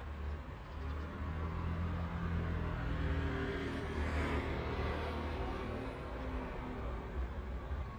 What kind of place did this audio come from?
residential area